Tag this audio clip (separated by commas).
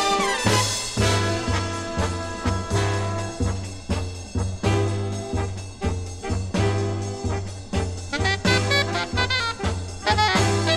Jazz, Music, Orchestra